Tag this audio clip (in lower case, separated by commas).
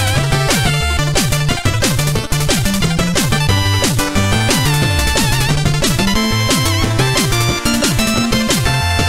music